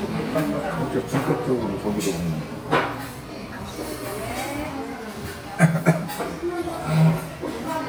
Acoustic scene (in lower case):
crowded indoor space